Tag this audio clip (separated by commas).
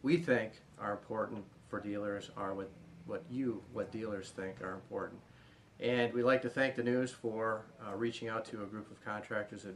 Speech